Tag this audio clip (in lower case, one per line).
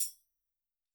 tambourine
music
percussion
musical instrument